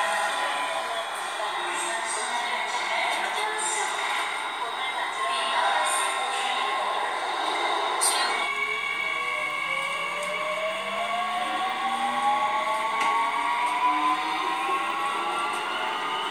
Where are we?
on a subway train